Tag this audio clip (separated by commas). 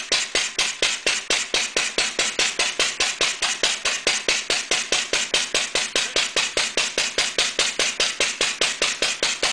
Speech